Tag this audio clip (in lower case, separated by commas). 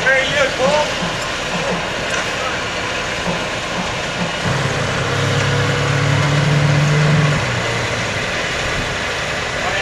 speech, speedboat, boat, vehicle